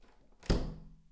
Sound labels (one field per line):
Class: door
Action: closing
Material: wooden